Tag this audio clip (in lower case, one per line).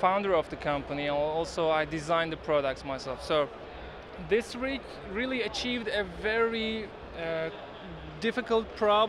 speech